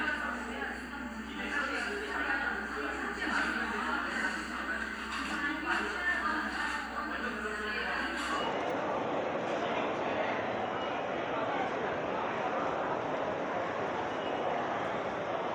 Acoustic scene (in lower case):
crowded indoor space